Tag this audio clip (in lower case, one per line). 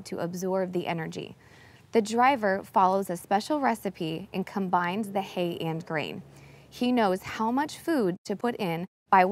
speech